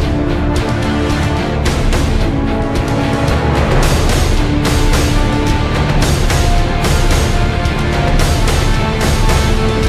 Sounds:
Background music, Music

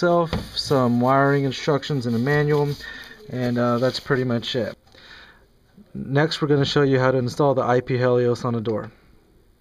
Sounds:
Speech

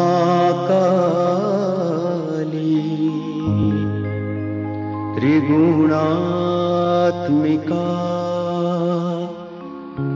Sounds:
Music, Mantra

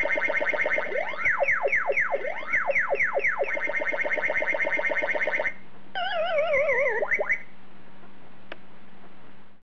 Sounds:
inside a small room

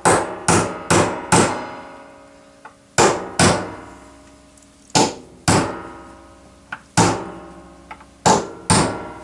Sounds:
hammering nails

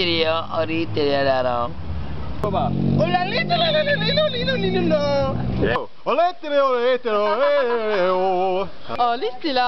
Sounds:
yodelling

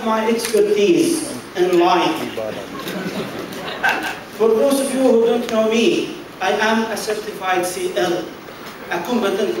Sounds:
Male speech, monologue, Speech

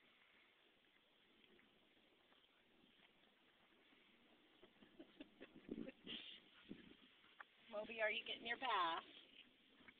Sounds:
Speech

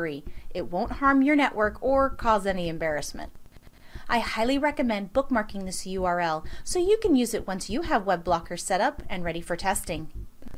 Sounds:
Speech

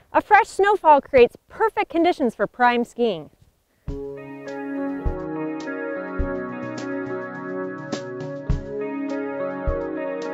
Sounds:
Music, Speech

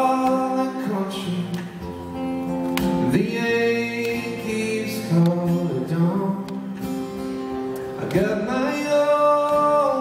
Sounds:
Plucked string instrument, Music, Musical instrument, Guitar, Male singing

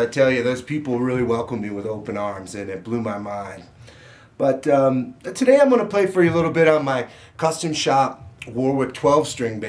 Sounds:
Speech

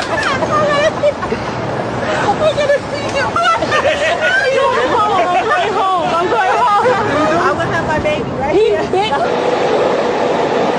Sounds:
Speech, speech noise

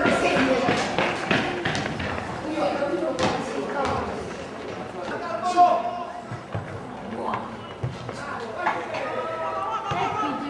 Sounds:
Speech

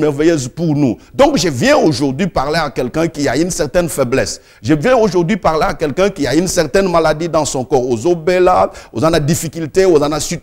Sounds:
Speech

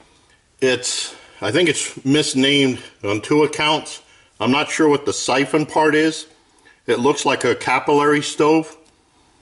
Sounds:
Speech

